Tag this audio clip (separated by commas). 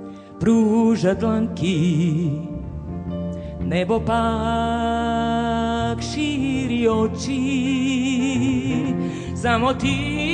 Music